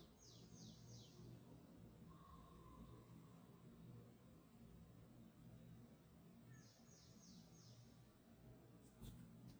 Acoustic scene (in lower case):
park